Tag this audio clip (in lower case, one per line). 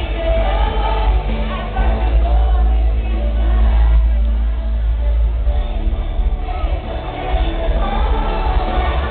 music
female singing